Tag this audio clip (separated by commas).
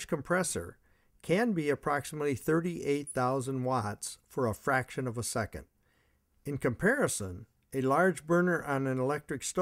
Speech